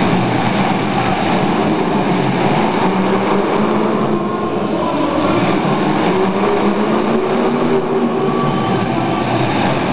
Several cars making engine noises